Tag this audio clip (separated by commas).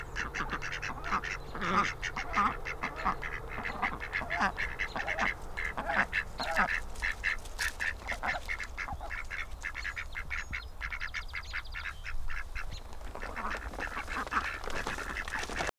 livestock, Fowl, Animal